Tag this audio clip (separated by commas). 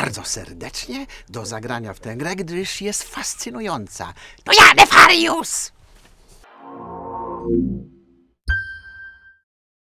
Speech, Music